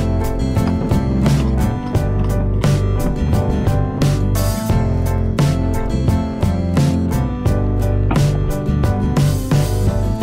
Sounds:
music

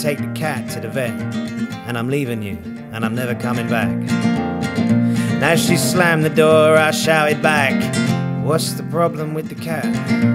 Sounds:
music, speech

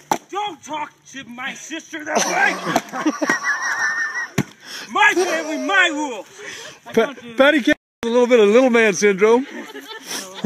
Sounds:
outside, rural or natural, speech

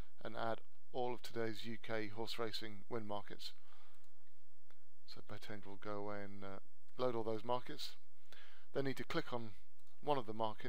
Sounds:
speech

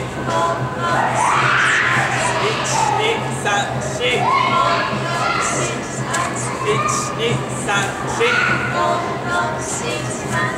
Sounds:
speech, inside a large room or hall

